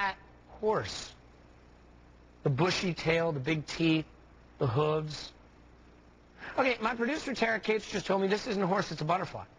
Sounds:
Speech

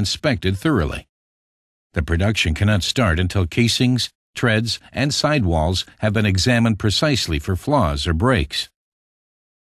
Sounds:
Speech, Speech synthesizer

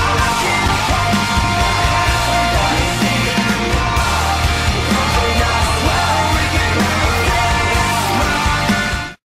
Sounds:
Music, Male singing

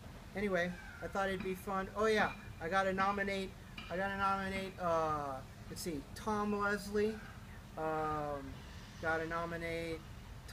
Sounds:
Speech

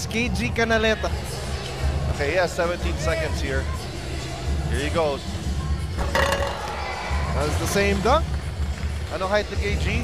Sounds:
Speech

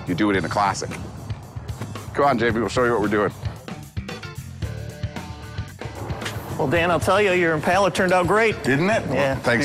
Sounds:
Speech, Music

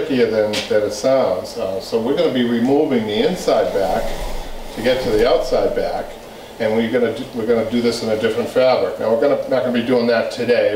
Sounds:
Speech

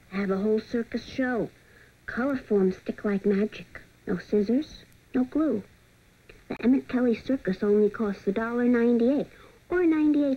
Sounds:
Speech

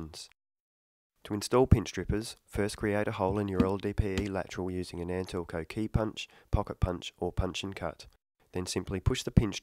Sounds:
Speech

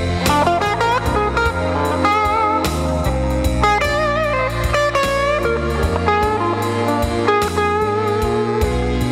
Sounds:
Music

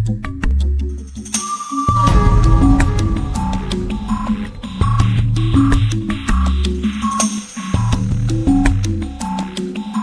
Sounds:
Music, Drum machine

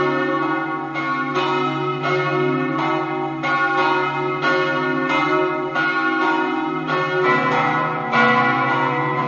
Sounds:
Bell

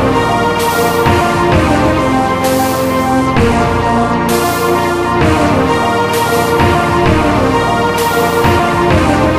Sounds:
Music, Dubstep

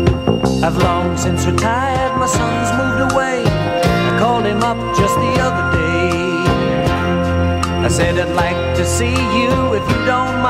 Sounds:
Country, Bluegrass

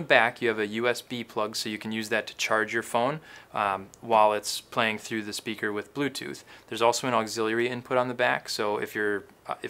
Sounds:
Speech

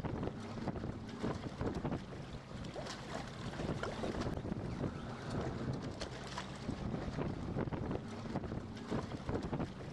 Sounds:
Boat

